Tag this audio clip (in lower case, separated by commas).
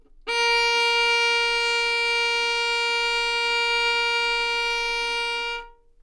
music, bowed string instrument, musical instrument